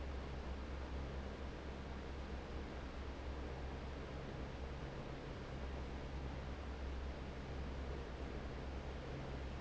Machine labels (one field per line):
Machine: fan